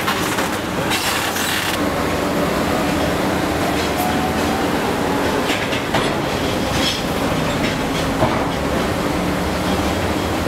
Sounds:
rustling leaves

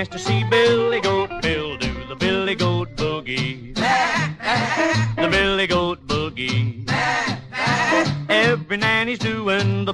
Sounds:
music
bleat

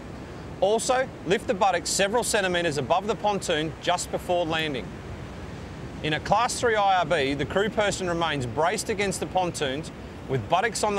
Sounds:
waves
speech
vehicle
sailboat

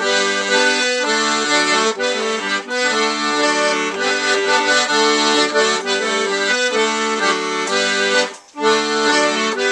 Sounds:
musical instrument
music

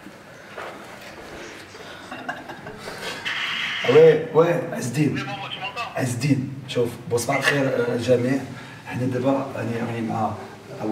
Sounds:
speech

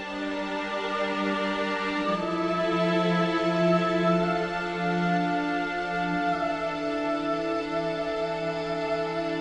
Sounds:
music

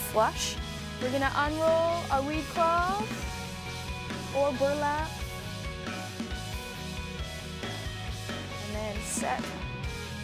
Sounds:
speech
music

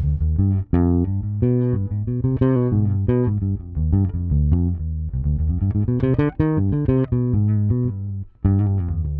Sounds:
playing bass guitar

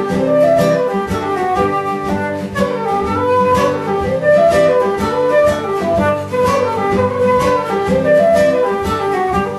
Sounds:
musical instrument
acoustic guitar
plucked string instrument
music
guitar

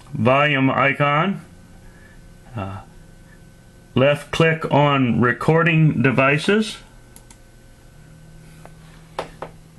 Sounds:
speech

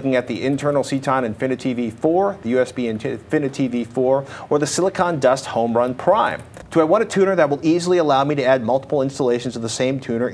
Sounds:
speech

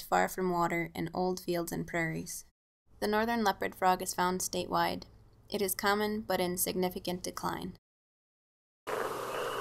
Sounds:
speech

